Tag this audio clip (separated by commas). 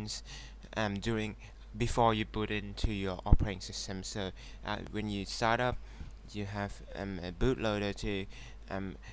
Speech